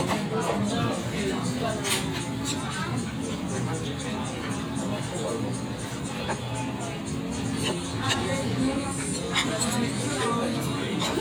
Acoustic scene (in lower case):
crowded indoor space